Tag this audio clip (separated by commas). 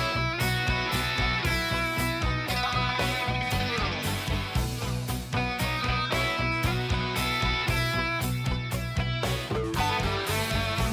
Music